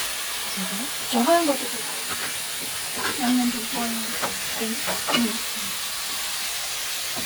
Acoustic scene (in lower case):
kitchen